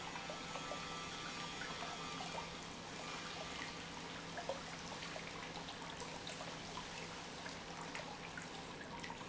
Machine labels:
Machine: pump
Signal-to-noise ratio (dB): 6 dB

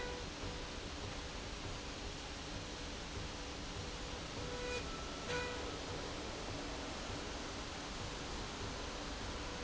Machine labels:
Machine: slide rail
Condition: normal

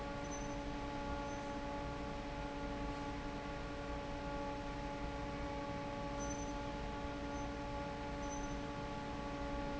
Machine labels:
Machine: fan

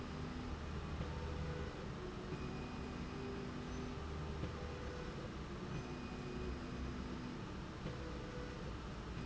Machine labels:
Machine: slide rail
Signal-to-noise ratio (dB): 0 dB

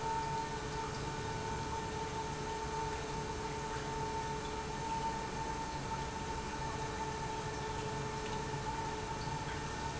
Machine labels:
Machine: pump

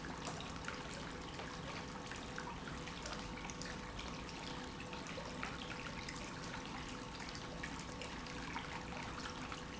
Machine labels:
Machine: pump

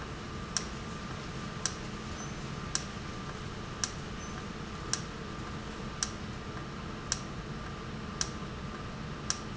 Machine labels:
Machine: valve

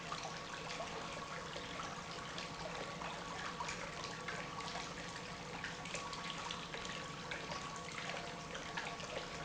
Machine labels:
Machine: pump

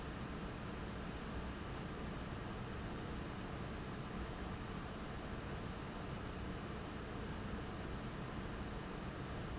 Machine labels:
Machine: fan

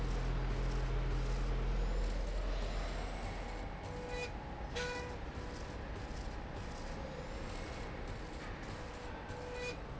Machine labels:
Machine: slide rail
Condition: normal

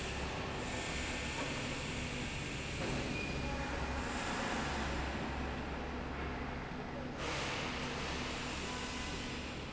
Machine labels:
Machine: slide rail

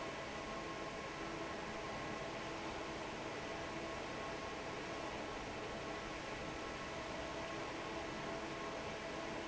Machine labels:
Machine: fan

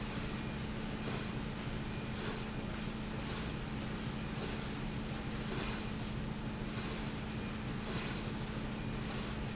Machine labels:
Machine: slide rail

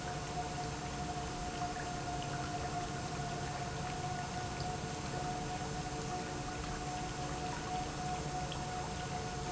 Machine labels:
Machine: pump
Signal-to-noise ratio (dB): -6 dB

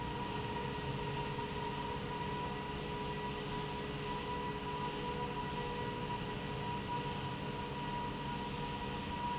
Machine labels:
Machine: pump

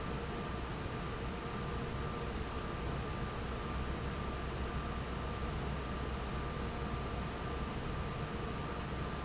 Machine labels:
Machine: fan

